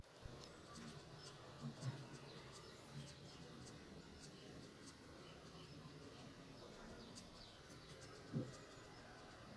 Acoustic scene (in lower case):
park